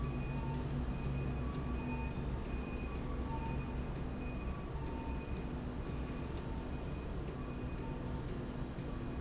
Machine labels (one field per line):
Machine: slide rail